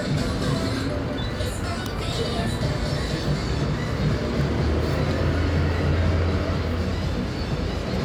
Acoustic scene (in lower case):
street